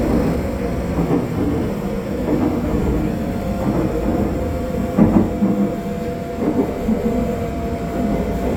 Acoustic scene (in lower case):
subway train